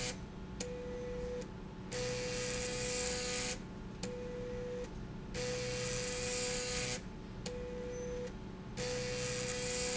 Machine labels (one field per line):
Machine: slide rail